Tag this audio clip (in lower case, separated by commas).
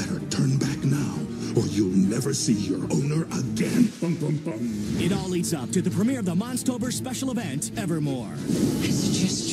music, speech